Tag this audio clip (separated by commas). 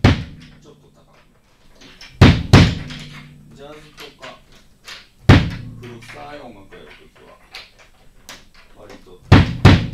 Music, Musical instrument, Speech, Drum, Bass drum